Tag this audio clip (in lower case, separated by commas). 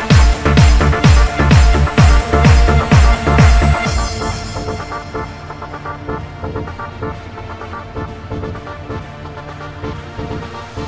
trance music, music